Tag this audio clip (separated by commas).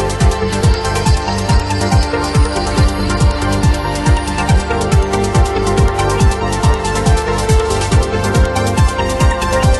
Video game music, Music, Exciting music